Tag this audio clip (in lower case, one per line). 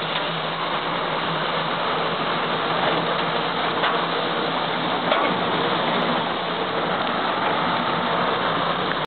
truck
vehicle